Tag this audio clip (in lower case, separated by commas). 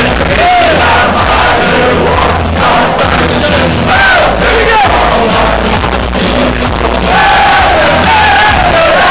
music, male singing